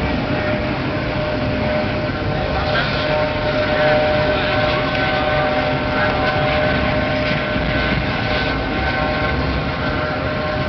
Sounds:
car, vehicle

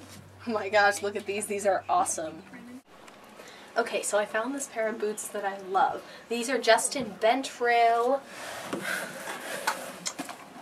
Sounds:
inside a small room, speech

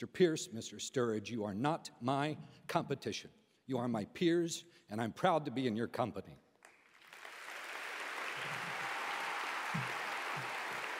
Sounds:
male speech, monologue, speech

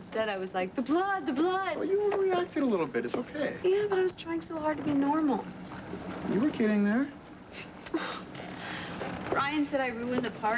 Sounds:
speech

